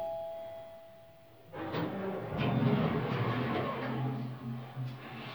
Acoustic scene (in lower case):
elevator